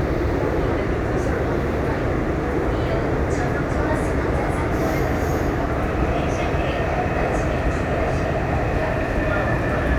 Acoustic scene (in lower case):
subway train